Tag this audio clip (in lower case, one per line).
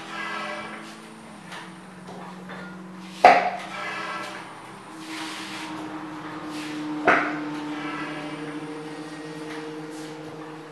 engine